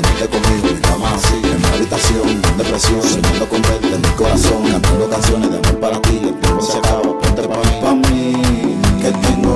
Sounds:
music of africa, afrobeat

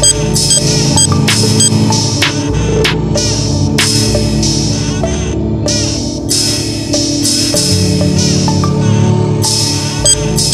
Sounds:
music

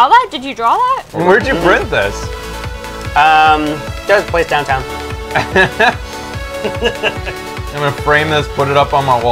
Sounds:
speech, music

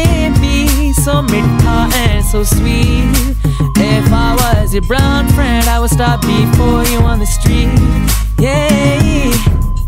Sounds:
music, singing

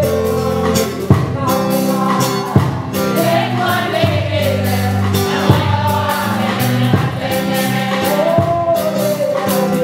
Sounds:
music, choir

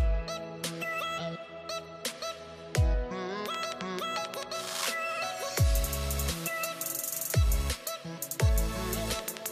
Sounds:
musical instrument, strum, guitar, music, plucked string instrument

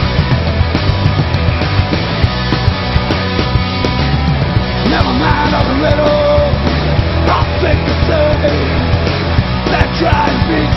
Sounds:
music

